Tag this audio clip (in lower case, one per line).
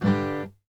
guitar
musical instrument
plucked string instrument
music